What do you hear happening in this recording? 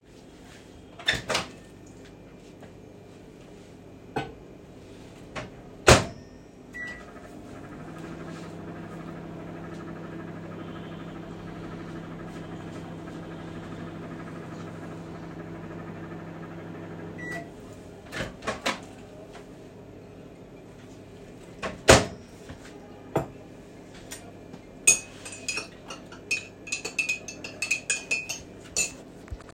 I opened the microwave door, put my cup inside, then closed the door and started. After it finished I took my cup, closed the door, then put the cup on the table and started stirring it using a spoon. A phone was ringing in the background.